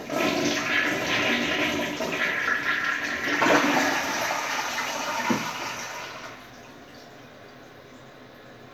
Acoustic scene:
restroom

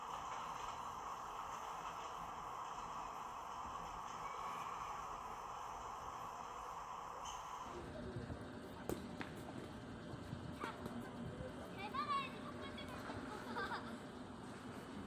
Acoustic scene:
park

